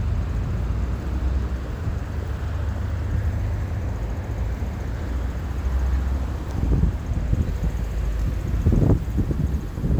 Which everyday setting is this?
street